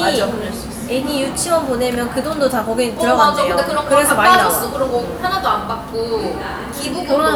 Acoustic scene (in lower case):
cafe